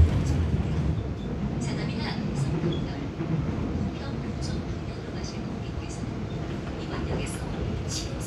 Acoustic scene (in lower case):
subway train